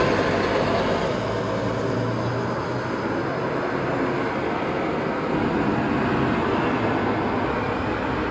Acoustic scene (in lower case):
street